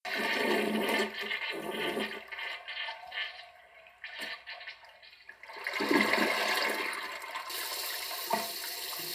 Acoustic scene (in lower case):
restroom